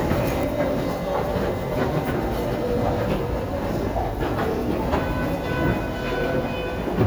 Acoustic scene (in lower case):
subway station